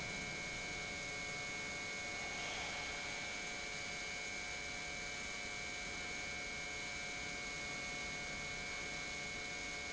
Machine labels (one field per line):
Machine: pump